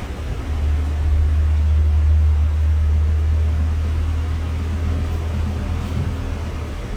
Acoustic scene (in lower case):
bus